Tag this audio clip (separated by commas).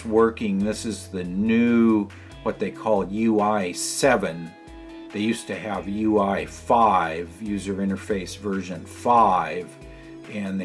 Speech